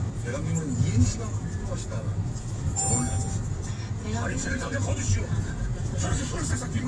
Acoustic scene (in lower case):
car